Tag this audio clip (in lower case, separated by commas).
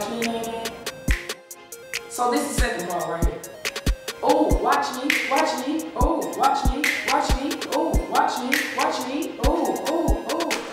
music, speech